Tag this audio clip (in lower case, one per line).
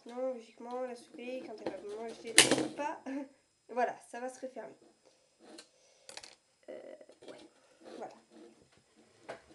speech